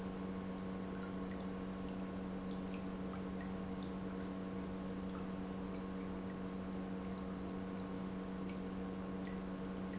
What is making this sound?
pump